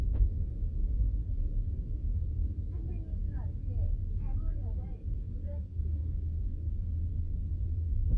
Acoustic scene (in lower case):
car